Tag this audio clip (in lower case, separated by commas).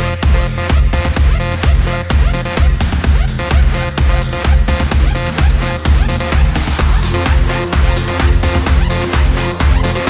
music